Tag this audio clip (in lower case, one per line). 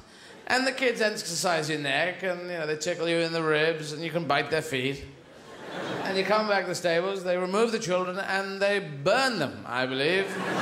speech